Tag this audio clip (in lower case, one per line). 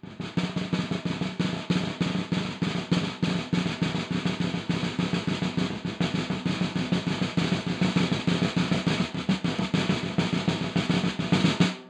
snare drum
drum
music
percussion
musical instrument